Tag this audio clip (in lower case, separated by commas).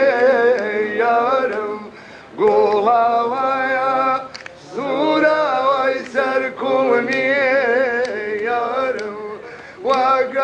chant